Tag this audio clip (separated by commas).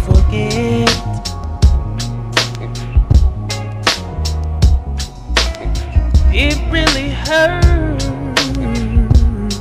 Music